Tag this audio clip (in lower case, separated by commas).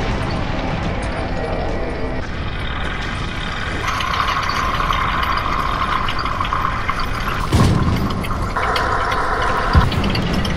vehicle, outside, rural or natural